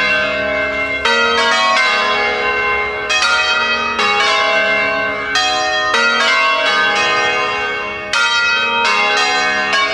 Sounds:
bell

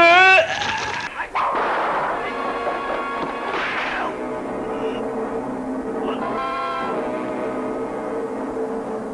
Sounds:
music, speech

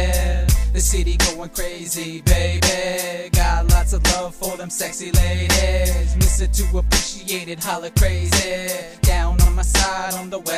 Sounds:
music

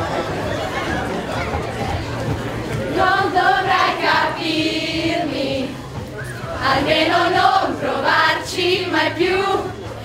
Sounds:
chatter, speech

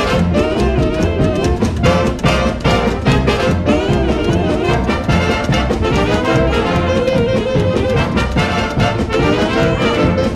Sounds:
music, orchestra, musical instrument

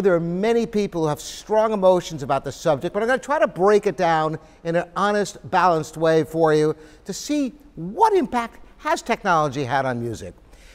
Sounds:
speech

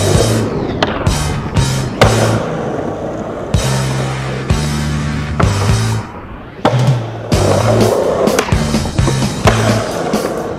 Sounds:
skateboard, music

